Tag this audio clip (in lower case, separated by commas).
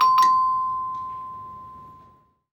bell